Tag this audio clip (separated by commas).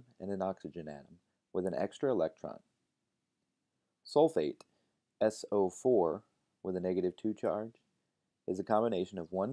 Speech